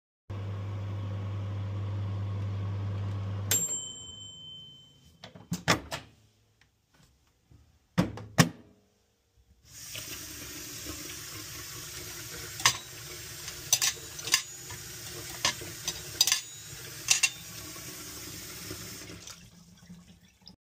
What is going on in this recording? I was waiting for my food to warm up and turned on water. I opened the microwave and started arranging the cutlery